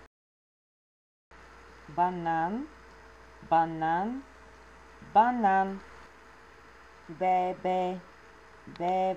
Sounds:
Speech

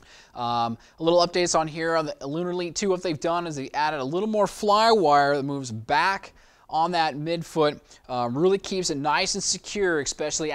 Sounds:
Speech

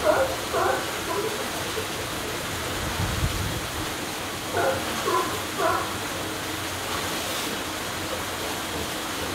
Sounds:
sea lion barking

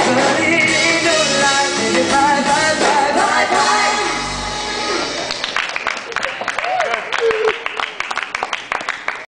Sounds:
Male singing, Music, Speech

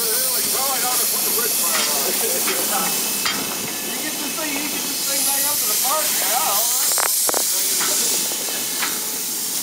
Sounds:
Speech, Hiss

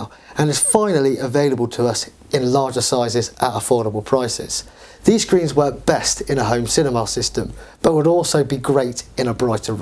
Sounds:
Speech

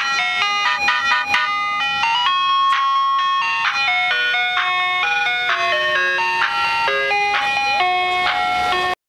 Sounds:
Music

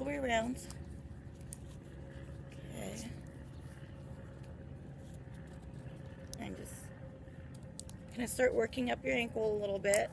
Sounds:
Speech

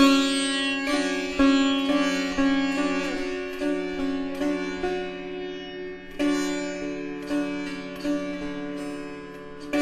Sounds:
Music, Banjo

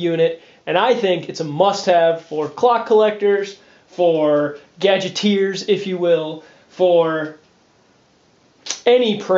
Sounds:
Speech

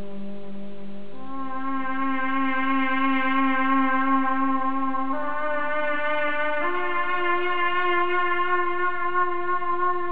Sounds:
Music

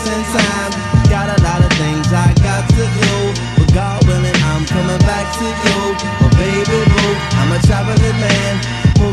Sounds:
Music

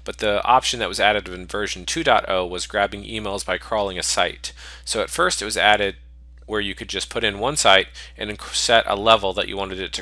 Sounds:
Speech

